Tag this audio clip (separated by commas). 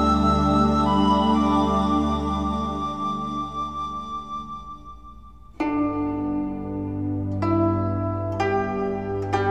Music